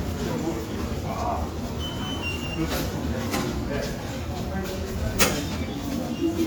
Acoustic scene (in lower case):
subway station